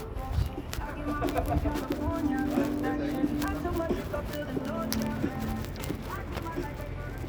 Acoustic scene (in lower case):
residential area